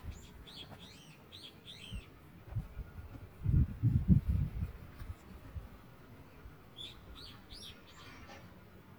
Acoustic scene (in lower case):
park